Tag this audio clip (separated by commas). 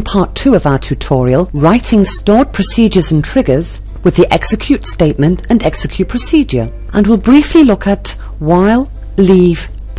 Speech